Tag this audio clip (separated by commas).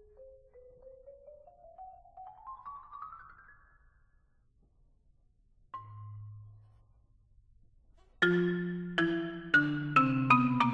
xylophone, Musical instrument, Marimba, Music